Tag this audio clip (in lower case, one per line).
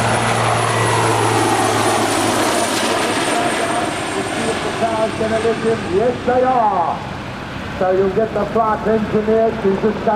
aircraft
speech
helicopter
vehicle